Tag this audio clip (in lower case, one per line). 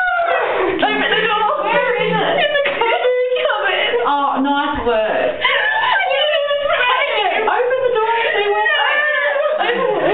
speech